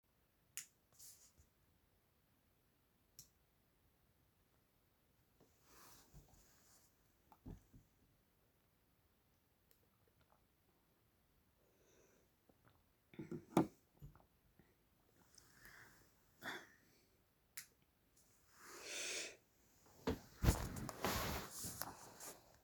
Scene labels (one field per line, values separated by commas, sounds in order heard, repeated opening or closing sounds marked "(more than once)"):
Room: bedroom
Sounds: light switch